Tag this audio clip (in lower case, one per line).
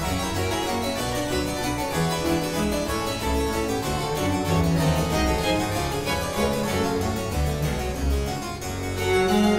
playing harpsichord